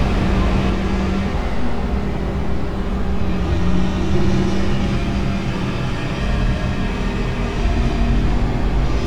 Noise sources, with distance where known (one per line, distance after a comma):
large-sounding engine